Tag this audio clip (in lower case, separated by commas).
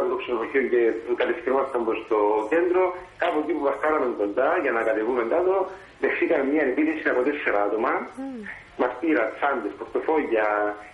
speech